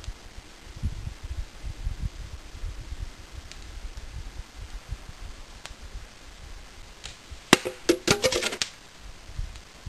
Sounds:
Arrow

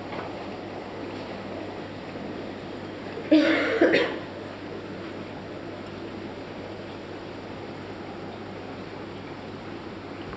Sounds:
inside a small room

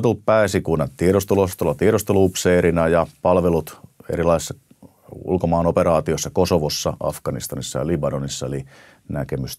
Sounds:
Speech

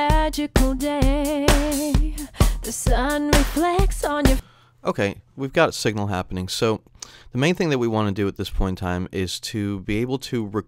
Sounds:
Music, Speech

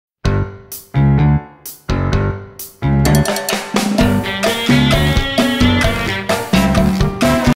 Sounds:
Music

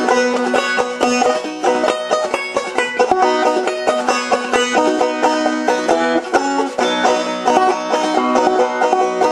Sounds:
Banjo, Music, playing banjo

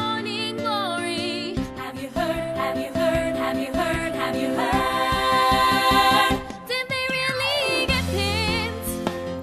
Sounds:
Music

